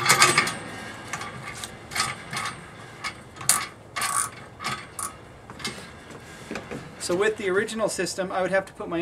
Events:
0.0s-0.6s: generic impact sounds
0.0s-9.0s: wind
1.0s-1.2s: generic impact sounds
1.4s-1.6s: generic impact sounds
1.9s-2.1s: generic impact sounds
2.2s-2.5s: generic impact sounds
3.0s-3.2s: generic impact sounds
3.3s-3.7s: generic impact sounds
3.9s-4.3s: generic impact sounds
4.6s-5.1s: generic impact sounds
5.4s-5.9s: generic impact sounds
6.1s-6.3s: generic impact sounds
6.5s-6.8s: generic impact sounds
7.0s-9.0s: man speaking
8.6s-8.7s: generic impact sounds

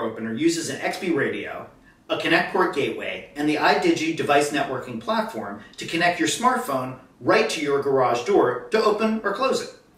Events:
0.0s-1.6s: man speaking
0.0s-9.9s: background noise
1.8s-2.0s: breathing
2.1s-5.6s: man speaking
5.7s-7.0s: man speaking
7.2s-8.6s: man speaking
8.6s-9.7s: man speaking

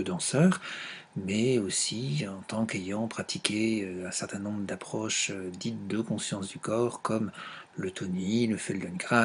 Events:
0.0s-0.6s: man speaking
0.0s-9.2s: mechanisms
0.6s-1.0s: breathing
1.1s-7.3s: man speaking
7.3s-7.7s: breathing
7.7s-9.2s: man speaking

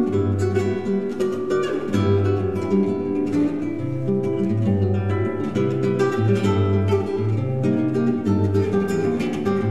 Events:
0.0s-9.7s: music

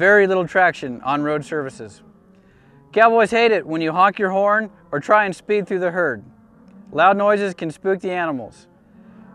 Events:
0.0s-1.9s: male speech
0.0s-9.3s: animal
2.3s-2.9s: breathing
2.8s-4.6s: male speech
4.8s-6.2s: male speech
6.9s-8.7s: male speech
8.8s-9.3s: breathing

